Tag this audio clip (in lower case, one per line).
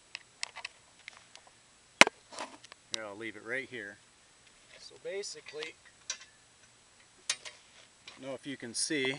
speech